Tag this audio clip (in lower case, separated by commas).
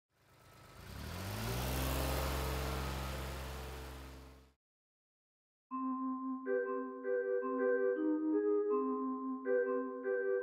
vibraphone, vehicle, music, car